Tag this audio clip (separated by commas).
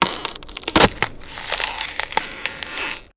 Crack